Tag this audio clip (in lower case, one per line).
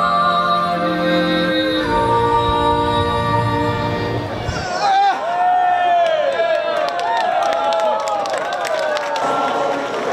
yodelling